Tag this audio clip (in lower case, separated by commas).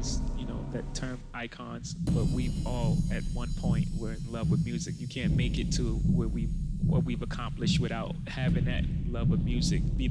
speech, heart sounds